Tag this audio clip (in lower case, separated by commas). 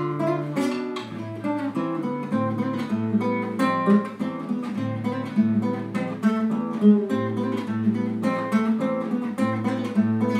plucked string instrument, musical instrument, acoustic guitar, guitar